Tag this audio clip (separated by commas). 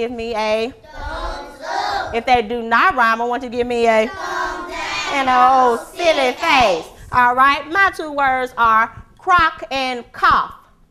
Speech